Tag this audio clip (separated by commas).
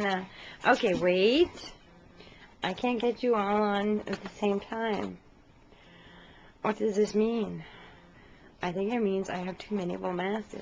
Speech